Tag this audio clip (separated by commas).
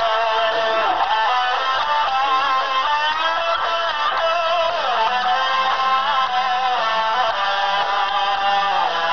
inside a large room or hall, Speech, Music